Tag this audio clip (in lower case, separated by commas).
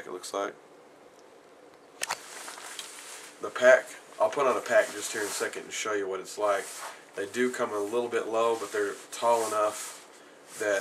inside a small room, speech